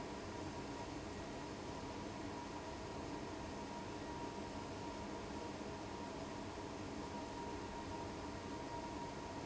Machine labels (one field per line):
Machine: fan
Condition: abnormal